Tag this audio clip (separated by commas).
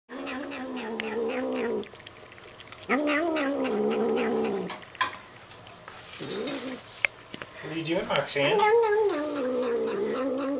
Animal, Speech, Cat